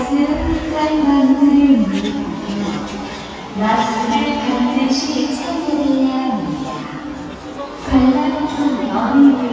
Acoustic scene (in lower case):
crowded indoor space